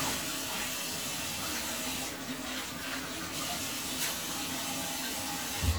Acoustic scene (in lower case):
restroom